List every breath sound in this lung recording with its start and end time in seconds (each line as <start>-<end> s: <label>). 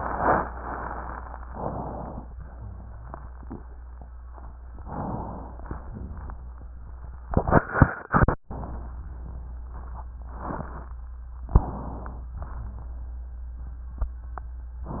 1.50-2.26 s: inhalation
4.78-5.64 s: inhalation
11.57-12.43 s: inhalation